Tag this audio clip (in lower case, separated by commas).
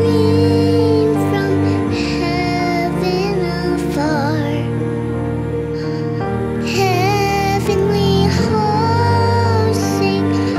child singing